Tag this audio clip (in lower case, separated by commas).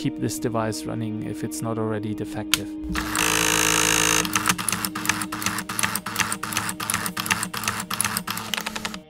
tools, speech, printer, music